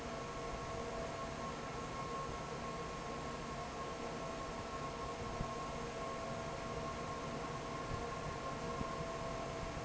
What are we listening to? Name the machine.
fan